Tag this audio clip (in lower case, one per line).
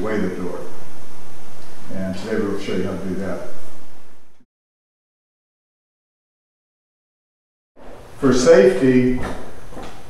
speech